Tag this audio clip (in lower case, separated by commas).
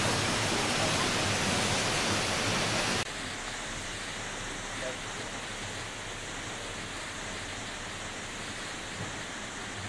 waterfall burbling, waterfall